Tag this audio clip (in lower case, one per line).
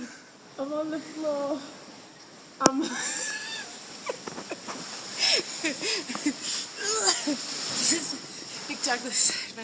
speech